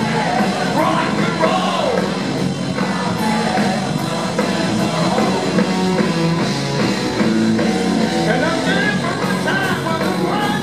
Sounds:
Rock and roll, Music

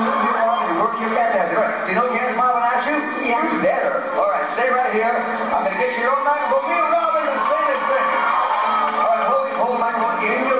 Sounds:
Speech, Music

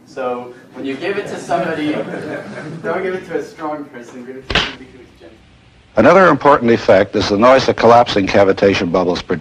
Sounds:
Speech

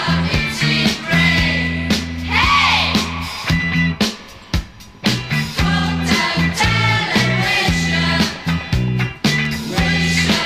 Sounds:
Psychedelic rock, Music

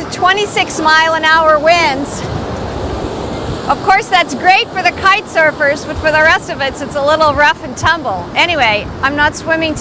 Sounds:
Speech, Rustling leaves

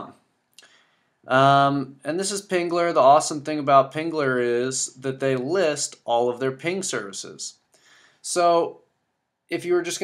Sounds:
Speech

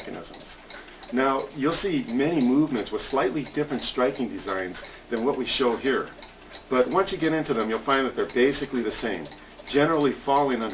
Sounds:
Speech

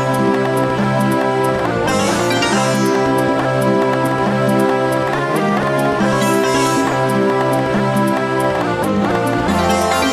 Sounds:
Music

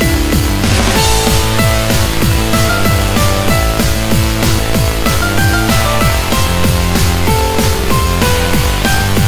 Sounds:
Music

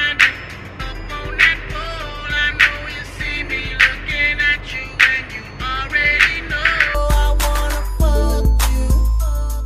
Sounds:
Happy music, Tender music, Music

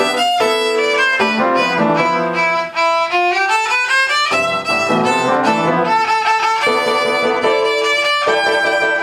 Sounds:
Music, Musical instrument, fiddle

